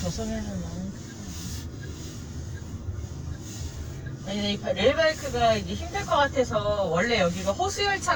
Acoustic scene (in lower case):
car